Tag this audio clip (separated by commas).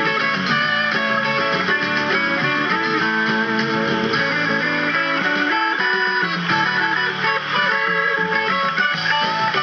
Electric guitar, Guitar, Music